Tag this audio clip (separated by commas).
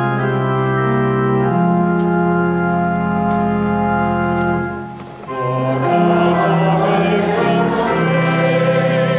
Music, Piano, Keyboard (musical), Musical instrument